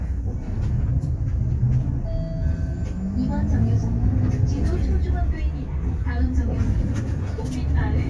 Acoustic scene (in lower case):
bus